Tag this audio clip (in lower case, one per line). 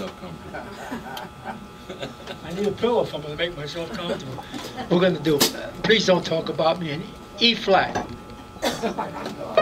speech